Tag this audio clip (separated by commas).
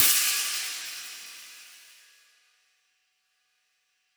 Percussion, Musical instrument, Music, Cymbal, Hi-hat